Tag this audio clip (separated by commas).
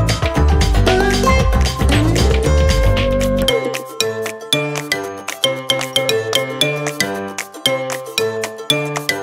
Music